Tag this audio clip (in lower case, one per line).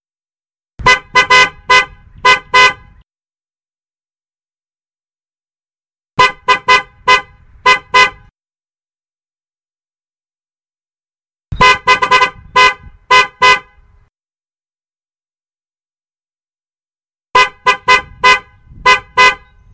alarm
car horn
motor vehicle (road)
car
vehicle